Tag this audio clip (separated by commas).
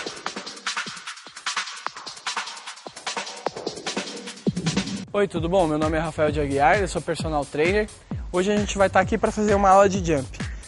bouncing on trampoline